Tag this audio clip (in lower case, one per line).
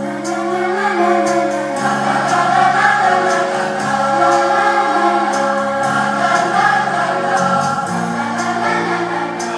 music
choir